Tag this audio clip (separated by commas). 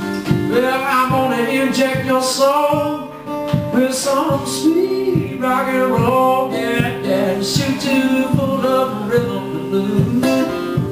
Music